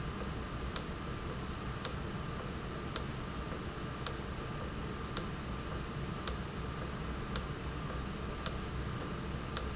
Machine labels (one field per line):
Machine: valve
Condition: normal